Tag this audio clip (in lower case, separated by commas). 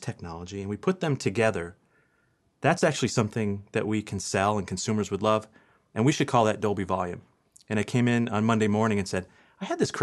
speech